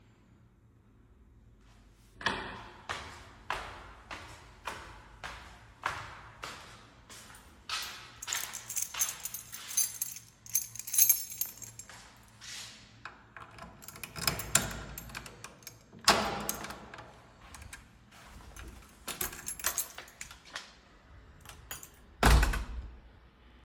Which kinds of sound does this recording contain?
footsteps, keys, door